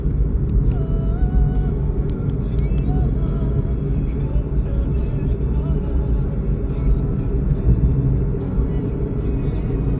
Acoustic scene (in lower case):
car